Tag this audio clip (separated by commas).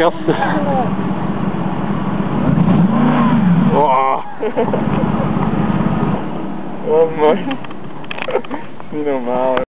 Idling, Car, Engine, Vehicle, Medium engine (mid frequency), Speech